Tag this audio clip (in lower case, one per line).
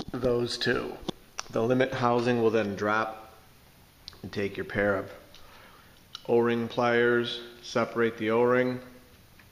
speech